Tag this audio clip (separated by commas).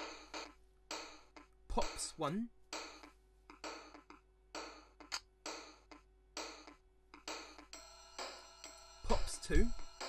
Electric piano, Piano, Musical instrument, Speech, Music, Keyboard (musical)